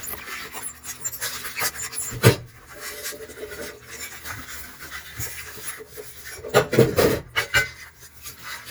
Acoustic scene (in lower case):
kitchen